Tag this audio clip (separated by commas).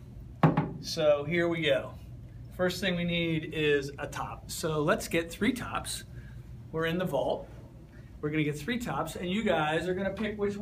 Speech